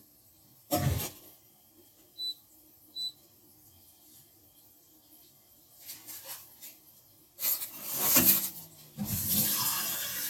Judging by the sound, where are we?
in a kitchen